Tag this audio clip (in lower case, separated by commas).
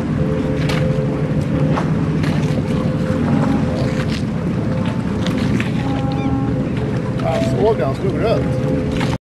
boat, vehicle, speech, rowboat